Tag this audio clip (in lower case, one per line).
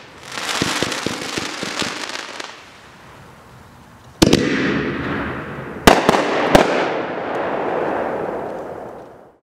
fireworks